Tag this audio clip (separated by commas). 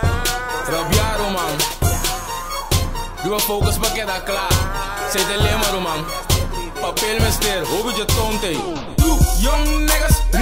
Music